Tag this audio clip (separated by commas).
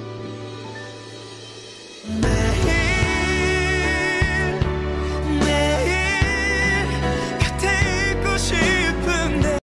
Music